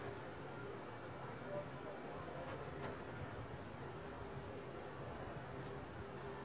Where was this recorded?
in a residential area